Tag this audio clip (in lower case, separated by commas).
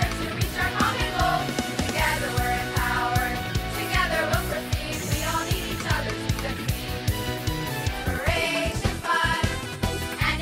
music, exciting music